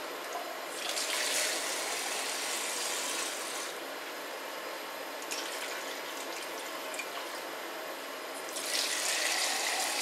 Water filling something up then dumped into something and then filled again and dumped a final time